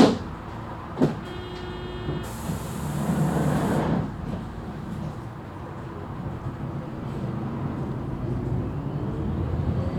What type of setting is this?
bus